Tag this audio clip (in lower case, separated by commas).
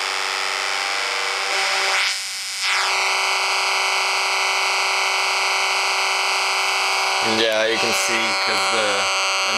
speech